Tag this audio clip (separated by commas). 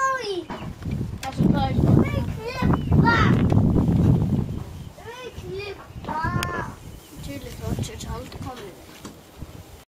Speech, Wind noise (microphone)